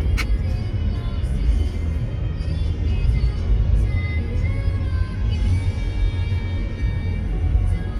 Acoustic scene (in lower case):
car